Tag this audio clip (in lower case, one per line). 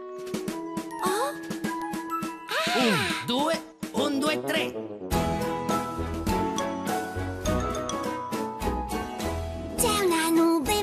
music
speech